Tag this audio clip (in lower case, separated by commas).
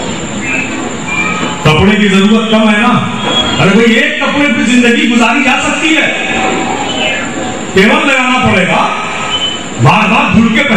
monologue, male speech, speech